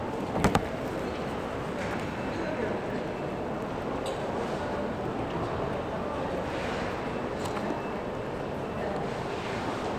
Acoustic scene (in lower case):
crowded indoor space